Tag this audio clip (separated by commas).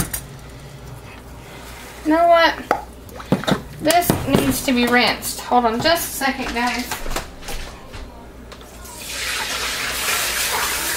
Water